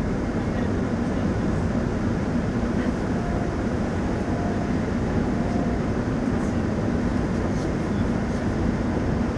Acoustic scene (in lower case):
subway train